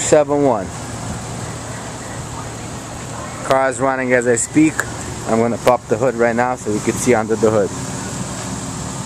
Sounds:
Speech, Car, Vehicle

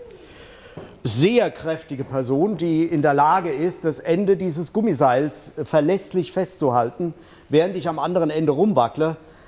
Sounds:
Speech

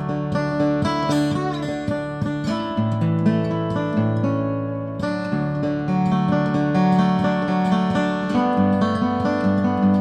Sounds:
Musical instrument, Acoustic guitar, Music, Guitar

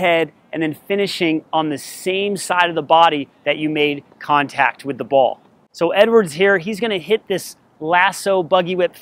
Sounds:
Speech

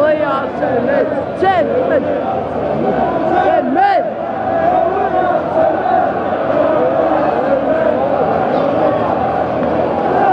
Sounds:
Speech

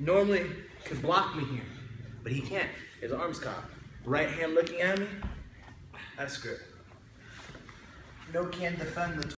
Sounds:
Speech

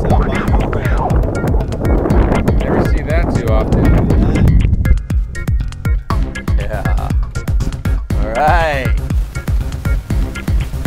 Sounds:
Music, Speech

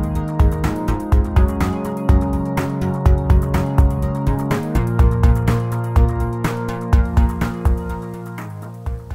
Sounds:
Speech, inside a small room, Music

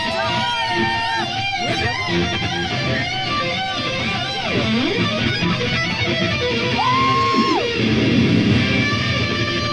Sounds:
Music, Speech

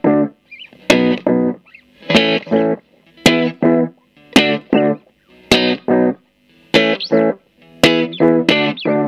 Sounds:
Chorus effect, Musical instrument, Guitar, Plucked string instrument, Music, inside a small room

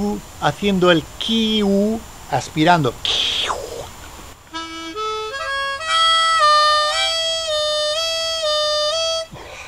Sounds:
Music, man speaking, Harmonica, Speech

